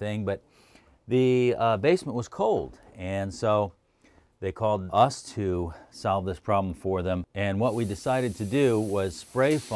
A man speaks followed by some hissing